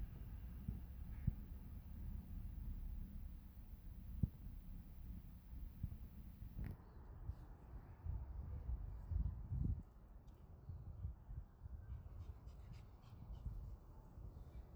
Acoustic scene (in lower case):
residential area